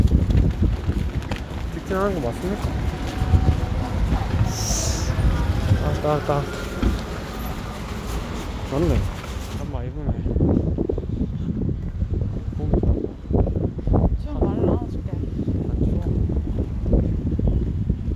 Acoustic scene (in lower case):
street